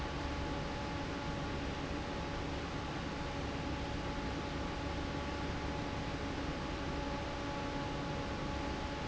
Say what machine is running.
fan